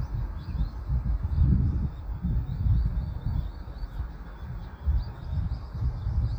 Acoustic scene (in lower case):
park